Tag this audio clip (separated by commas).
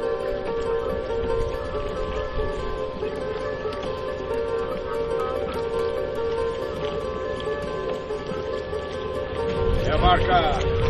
Speech, outside, urban or man-made, Music